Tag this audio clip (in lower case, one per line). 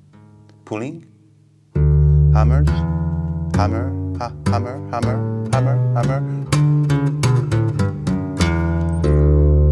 acoustic guitar
speech
music